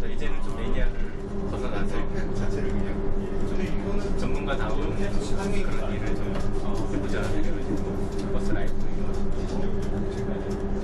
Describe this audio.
People having a conversation as they ride inside the moving bus